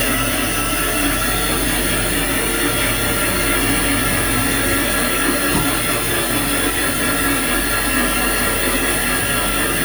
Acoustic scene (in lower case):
kitchen